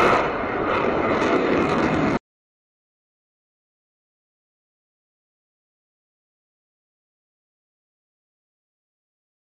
The loud whoosh of a rocket engine occurs